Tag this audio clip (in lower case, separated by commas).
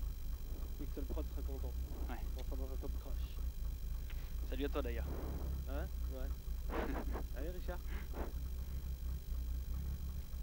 speech